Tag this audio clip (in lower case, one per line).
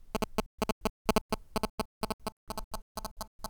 telephone
alarm